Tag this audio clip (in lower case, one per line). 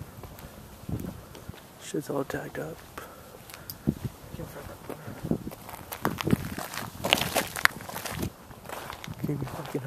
footsteps
speech